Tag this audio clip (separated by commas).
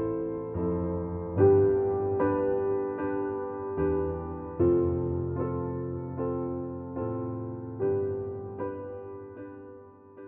Music